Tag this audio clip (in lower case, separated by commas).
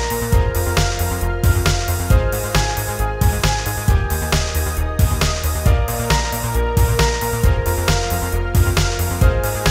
music